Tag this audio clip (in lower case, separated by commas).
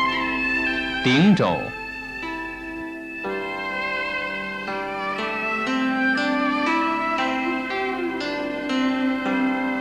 speech, music